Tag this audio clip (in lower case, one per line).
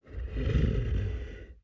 animal